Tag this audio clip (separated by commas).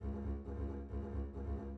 Musical instrument, Bowed string instrument, Music